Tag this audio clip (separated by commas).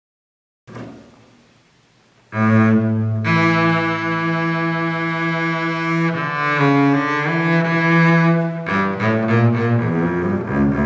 playing double bass, Music, Double bass